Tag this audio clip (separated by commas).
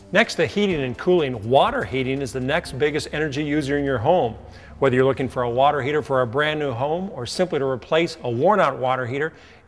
Music, Speech